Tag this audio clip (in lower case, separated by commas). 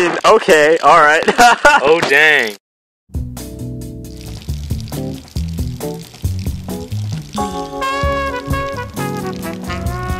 speech, music